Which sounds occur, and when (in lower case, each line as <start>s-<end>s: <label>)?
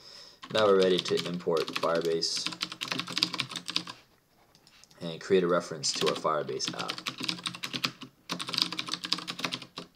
0.4s-2.4s: man speaking
0.5s-3.9s: typing
4.9s-6.7s: man speaking
5.8s-6.2s: typing
6.3s-8.1s: typing
8.3s-9.9s: typing